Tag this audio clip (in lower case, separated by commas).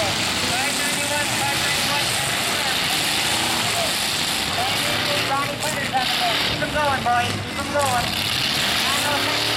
truck, speech, vehicle